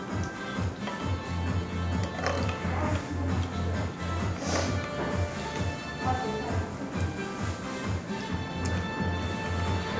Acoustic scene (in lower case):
restaurant